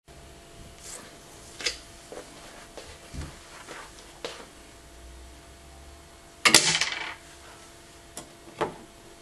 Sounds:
inside a small room

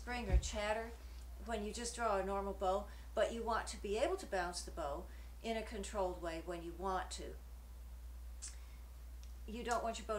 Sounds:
speech

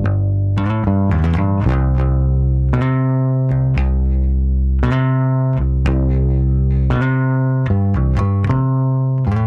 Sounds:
bass guitar, music, electronic tuner

